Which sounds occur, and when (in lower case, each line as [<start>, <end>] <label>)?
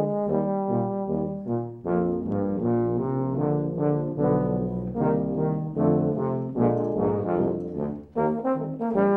[0.00, 9.15] background noise
[0.00, 9.15] music
[2.27, 2.36] tick
[6.67, 6.97] generic impact sounds
[7.54, 7.69] generic impact sounds
[7.89, 8.15] generic impact sounds